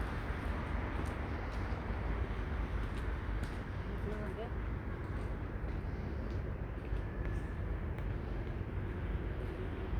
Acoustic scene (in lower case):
street